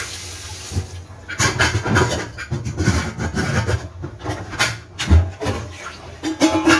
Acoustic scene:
kitchen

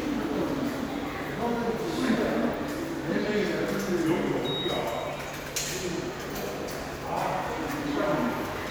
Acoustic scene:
subway station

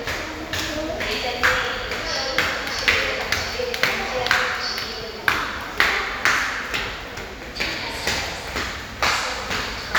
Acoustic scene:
crowded indoor space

